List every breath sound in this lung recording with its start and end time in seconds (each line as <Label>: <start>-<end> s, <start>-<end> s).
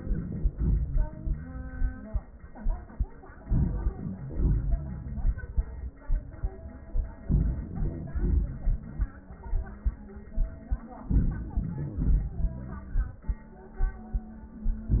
Inhalation: 3.43-4.17 s, 7.26-7.71 s, 11.04-11.45 s
Exhalation: 4.18-5.47 s, 7.71-9.43 s, 11.45-13.30 s
Wheeze: 3.92-5.35 s, 7.23-9.44 s
Crackles: 11.53-12.28 s